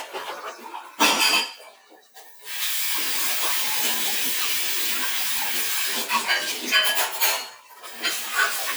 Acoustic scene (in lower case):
kitchen